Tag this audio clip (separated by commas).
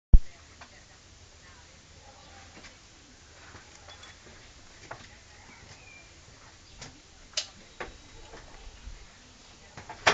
Speech